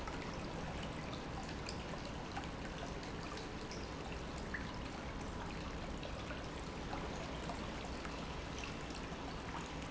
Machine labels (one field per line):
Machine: pump